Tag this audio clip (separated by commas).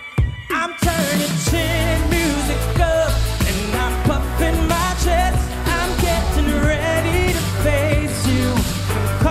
Music, Rhythm and blues